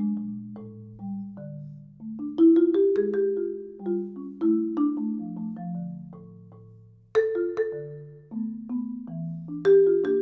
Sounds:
playing vibraphone

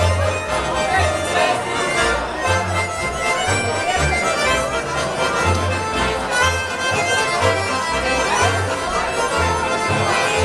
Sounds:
speech, music

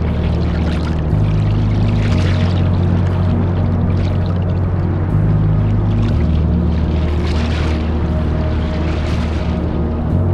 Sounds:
music

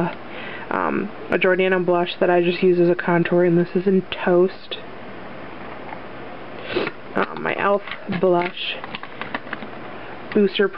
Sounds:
speech, inside a small room

